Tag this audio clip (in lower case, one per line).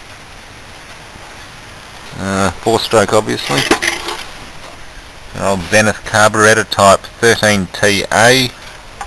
speech